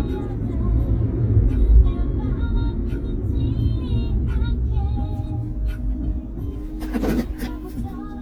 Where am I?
in a car